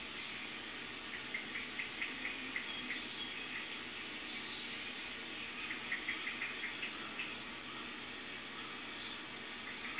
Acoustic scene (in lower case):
park